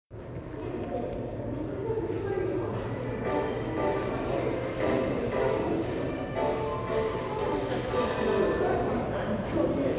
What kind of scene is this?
subway station